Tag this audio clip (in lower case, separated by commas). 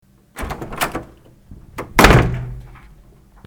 slam, home sounds, door